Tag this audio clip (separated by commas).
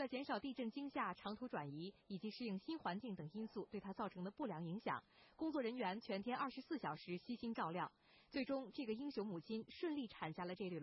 Speech